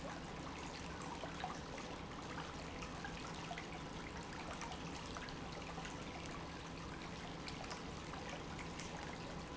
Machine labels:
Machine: pump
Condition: normal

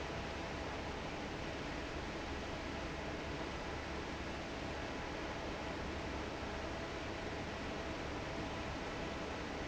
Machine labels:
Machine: fan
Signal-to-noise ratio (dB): 0 dB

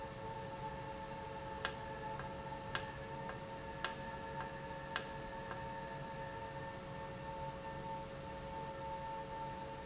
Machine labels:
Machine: valve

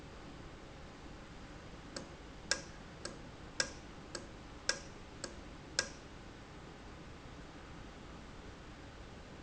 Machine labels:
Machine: valve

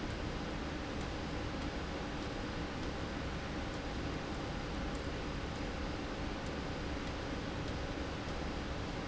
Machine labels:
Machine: slide rail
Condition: abnormal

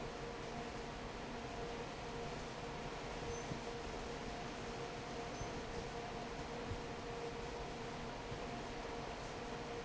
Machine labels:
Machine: fan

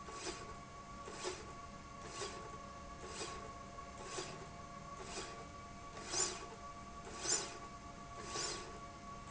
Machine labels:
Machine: slide rail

